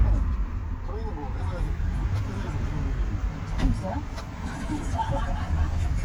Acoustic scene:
car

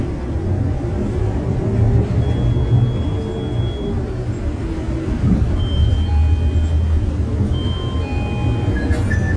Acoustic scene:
bus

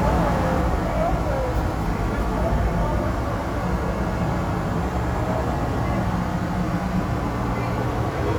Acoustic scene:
subway station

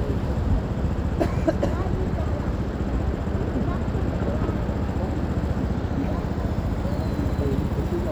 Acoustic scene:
street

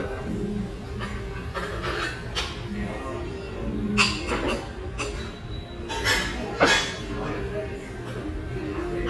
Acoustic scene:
restaurant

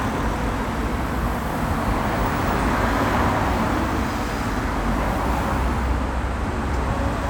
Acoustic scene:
street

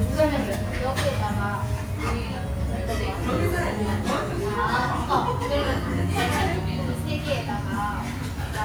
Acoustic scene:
restaurant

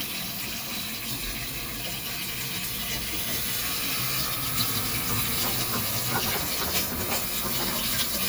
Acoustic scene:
kitchen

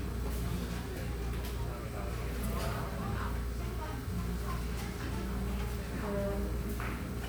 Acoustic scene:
cafe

